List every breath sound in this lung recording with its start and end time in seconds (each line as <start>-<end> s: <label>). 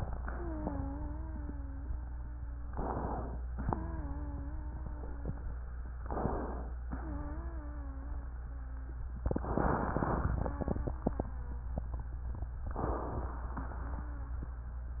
0.00-2.70 s: wheeze
2.66-3.49 s: inhalation
3.59-5.63 s: wheeze
5.99-6.82 s: inhalation
6.85-8.97 s: wheeze
10.44-11.69 s: wheeze
12.70-13.53 s: inhalation
13.51-14.54 s: wheeze